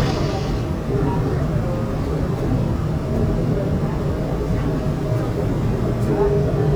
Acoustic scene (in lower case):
subway train